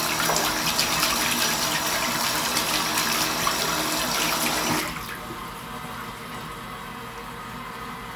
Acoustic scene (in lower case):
restroom